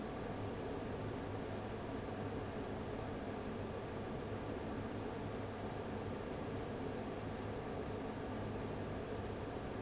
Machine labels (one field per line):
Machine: fan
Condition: abnormal